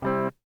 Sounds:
musical instrument, music, guitar, plucked string instrument

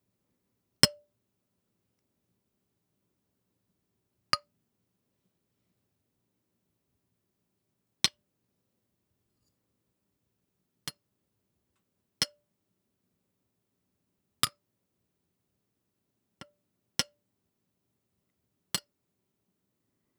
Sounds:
glass, clink

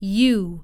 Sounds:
speech, human voice, female speech

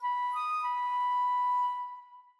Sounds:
woodwind instrument, musical instrument, music

